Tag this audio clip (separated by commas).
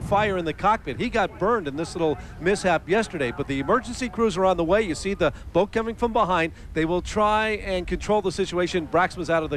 Speech